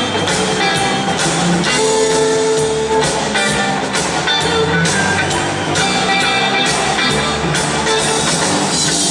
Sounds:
music

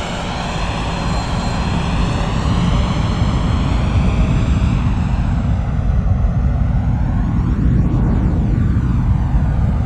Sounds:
aircraft
vehicle
aircraft engine
outside, rural or natural
airplane

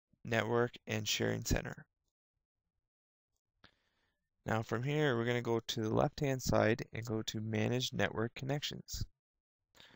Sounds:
speech

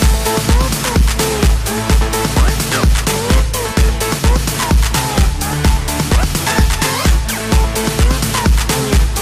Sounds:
music
disco
dance music

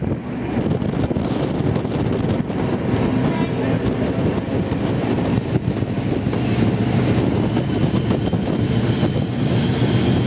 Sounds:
wind
wind noise (microphone)

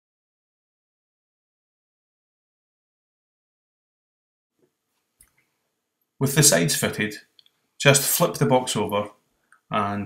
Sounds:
speech

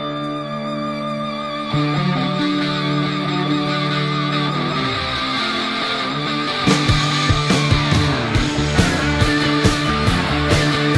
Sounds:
music

